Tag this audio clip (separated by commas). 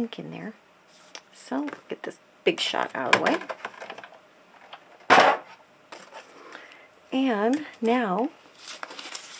inside a small room, Speech